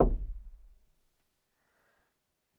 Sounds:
door, knock, home sounds

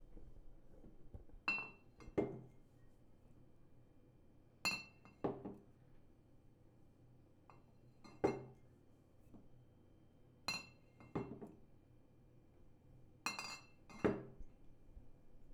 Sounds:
clink, glass

